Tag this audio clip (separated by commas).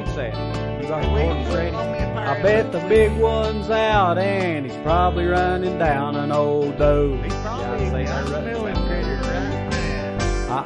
Speech, Music